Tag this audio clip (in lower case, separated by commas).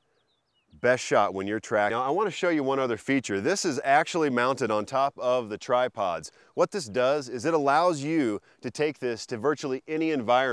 speech